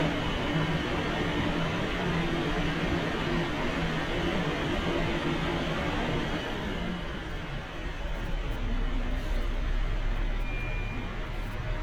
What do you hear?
large-sounding engine